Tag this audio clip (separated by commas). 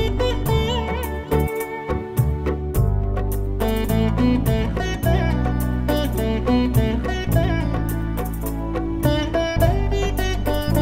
playing sitar